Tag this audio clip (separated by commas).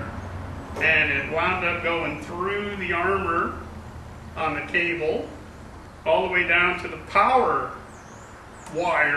Speech